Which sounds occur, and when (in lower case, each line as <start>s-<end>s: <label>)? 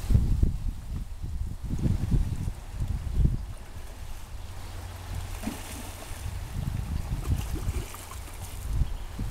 0.0s-9.3s: stream
6.7s-8.6s: slosh
8.5s-9.3s: wind noise (microphone)